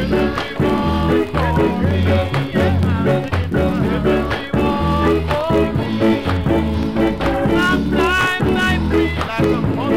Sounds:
ska, music

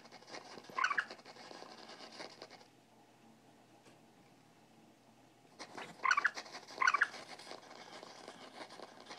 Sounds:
animal, mouse

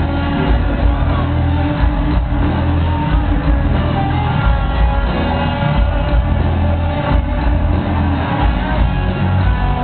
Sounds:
heavy metal, rock music, music, crowd

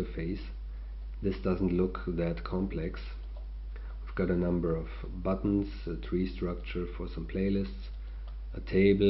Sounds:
speech

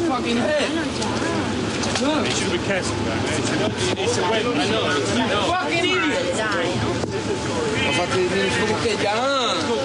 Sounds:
speech

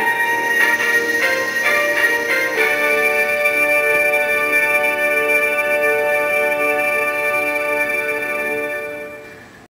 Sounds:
background music, music

